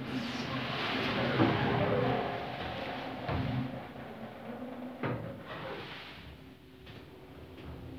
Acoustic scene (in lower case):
elevator